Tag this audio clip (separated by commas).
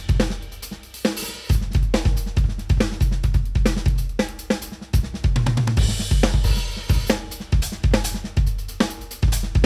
playing bass drum